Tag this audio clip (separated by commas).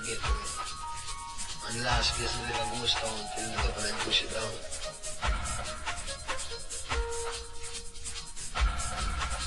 Sound effect, Music